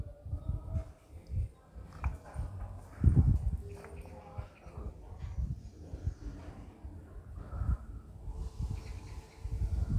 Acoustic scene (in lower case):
elevator